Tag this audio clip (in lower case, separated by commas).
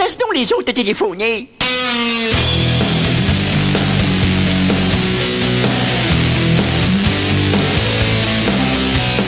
speech, music